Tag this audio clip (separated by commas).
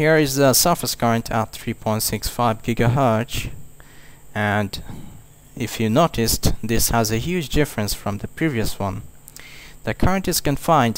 inside a small room, Speech